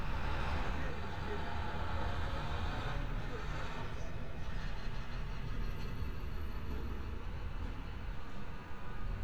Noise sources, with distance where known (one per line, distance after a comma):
large-sounding engine